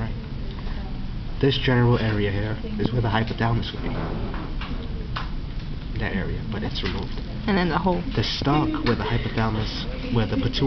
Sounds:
Speech

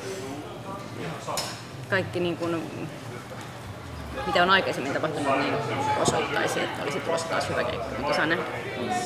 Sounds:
Speech

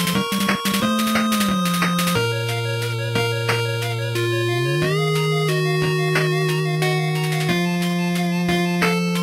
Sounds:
Music

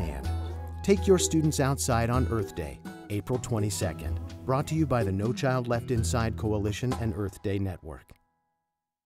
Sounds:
Speech, Music

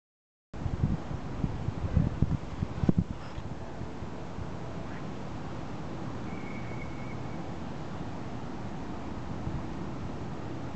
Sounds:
Wind

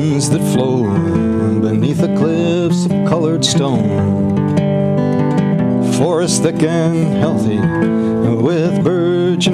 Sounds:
Music

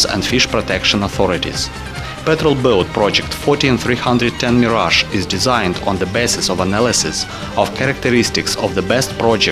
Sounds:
Speech, Music

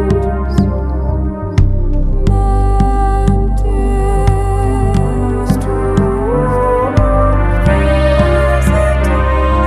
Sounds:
Soundtrack music, Music

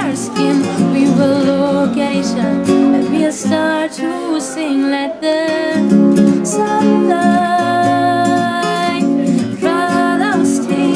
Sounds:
Acoustic guitar, Strum, Guitar, Music, Musical instrument, Plucked string instrument

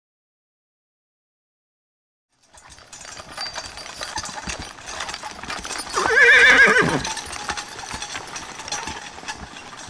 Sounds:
Horse, whinny

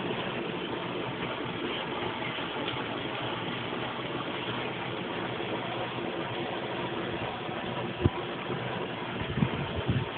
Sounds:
Waterfall

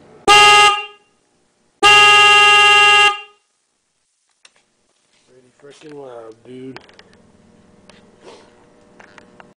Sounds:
Air horn, Speech

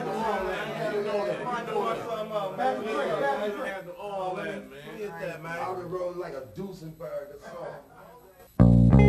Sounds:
Speech, Music

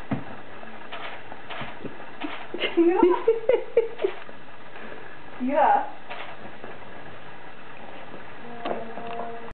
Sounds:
Speech

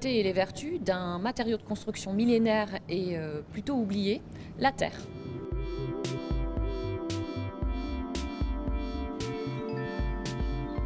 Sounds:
Music, Speech

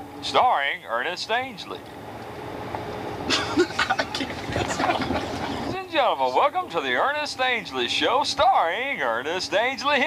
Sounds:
Speech

